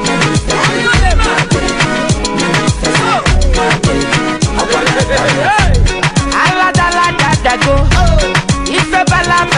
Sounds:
music

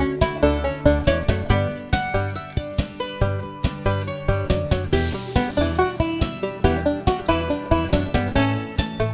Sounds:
playing mandolin

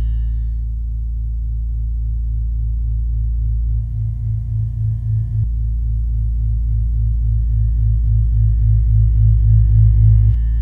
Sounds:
music
sound effect

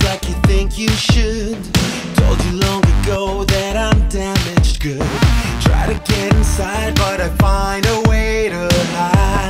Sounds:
music

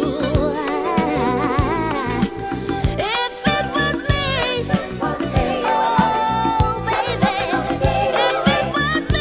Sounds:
music

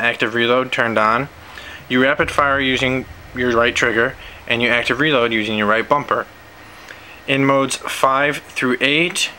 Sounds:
speech

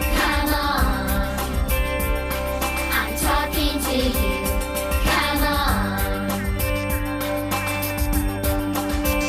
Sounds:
music

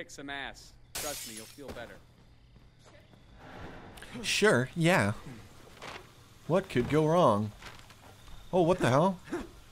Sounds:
speech

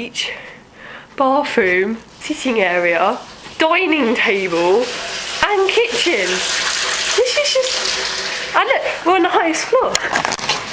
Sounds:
inside a small room
speech

